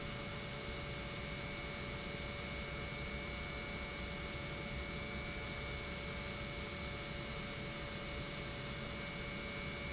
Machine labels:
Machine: pump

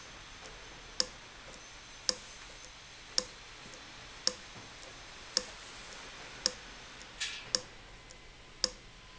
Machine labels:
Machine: valve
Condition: abnormal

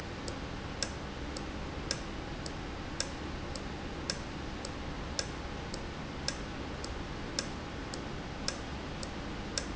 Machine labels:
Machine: valve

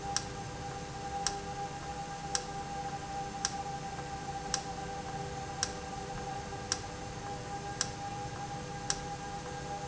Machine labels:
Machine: valve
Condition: normal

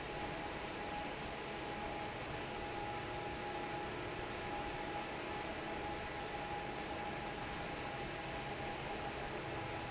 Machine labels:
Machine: fan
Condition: normal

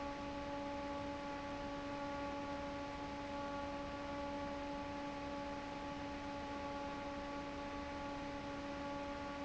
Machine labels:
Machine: fan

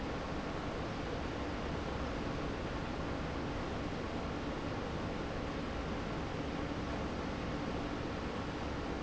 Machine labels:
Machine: pump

